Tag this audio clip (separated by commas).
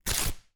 Tearing